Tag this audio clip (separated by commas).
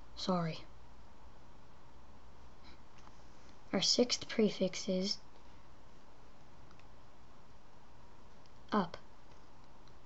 Speech, inside a small room